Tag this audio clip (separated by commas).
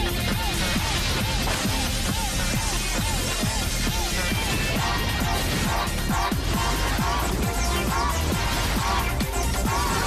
Music